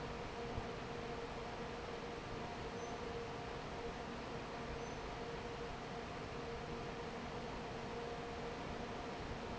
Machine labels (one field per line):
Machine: fan